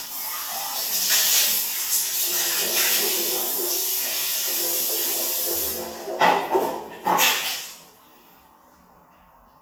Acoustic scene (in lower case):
restroom